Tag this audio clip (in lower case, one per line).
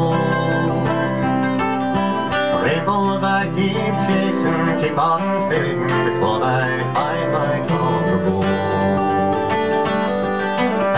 music
male singing